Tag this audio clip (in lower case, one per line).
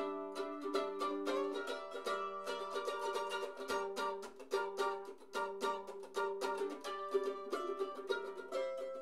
musical instrument
ukulele
mandolin
music